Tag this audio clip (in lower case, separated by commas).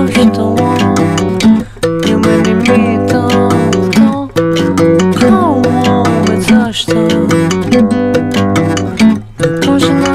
music, tick-tock